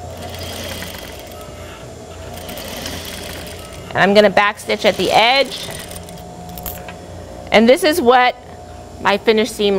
A sewing machine is running, and an adult female is speaking